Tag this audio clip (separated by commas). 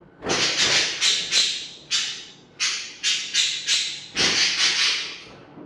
Animal, Bird, Wild animals